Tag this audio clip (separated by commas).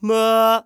Singing, Male singing, Human voice